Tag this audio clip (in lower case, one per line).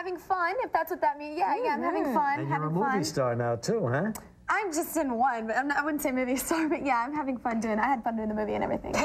speech